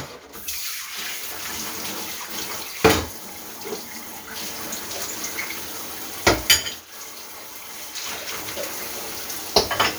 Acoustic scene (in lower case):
kitchen